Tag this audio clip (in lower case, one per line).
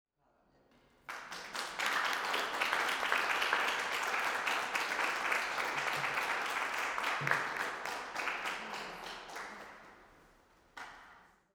applause
human group actions